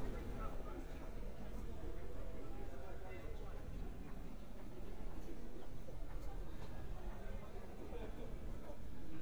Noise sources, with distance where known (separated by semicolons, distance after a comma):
person or small group talking, far